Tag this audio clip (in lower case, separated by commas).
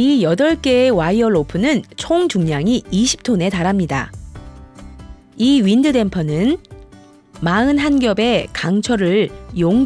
speech, music